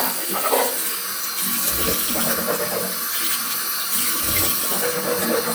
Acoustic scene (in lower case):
restroom